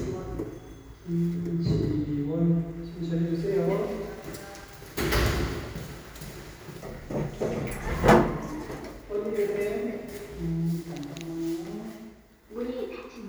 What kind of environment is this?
elevator